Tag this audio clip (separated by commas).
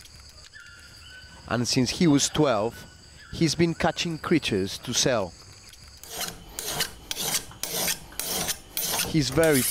Rub, Filing (rasp)